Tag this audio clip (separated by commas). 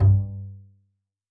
Bowed string instrument, Music, Musical instrument